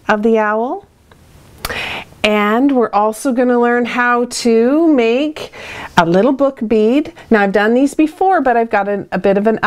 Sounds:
speech

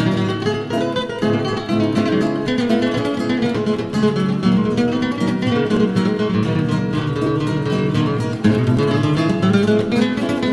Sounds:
flamenco
music

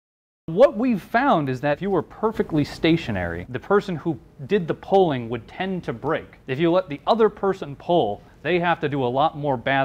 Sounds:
speech

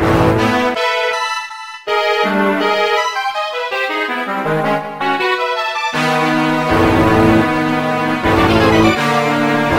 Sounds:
video game music
music

